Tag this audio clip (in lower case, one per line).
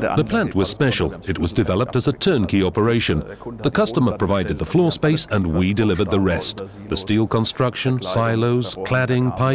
speech